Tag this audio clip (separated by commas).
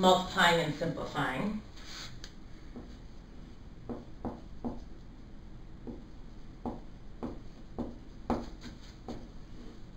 Speech